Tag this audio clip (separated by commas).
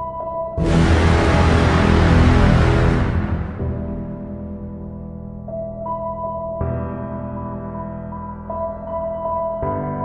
Music